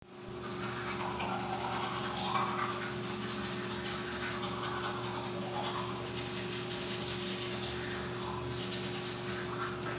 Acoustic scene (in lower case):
restroom